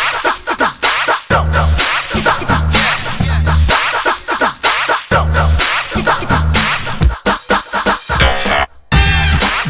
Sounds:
Music

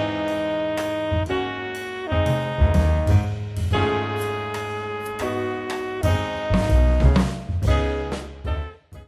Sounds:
Music

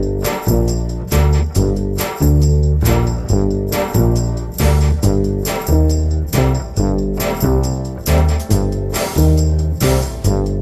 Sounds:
Music

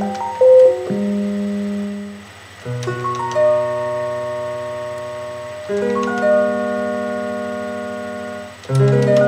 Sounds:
inside a small room, Music

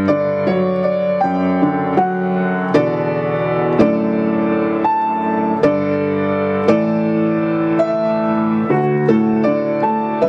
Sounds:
Soul music, Music

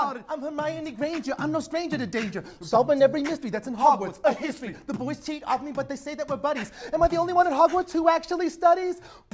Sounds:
Singing, Rapping

